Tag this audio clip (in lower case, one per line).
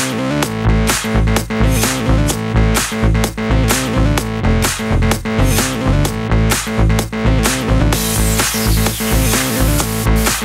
sampler
music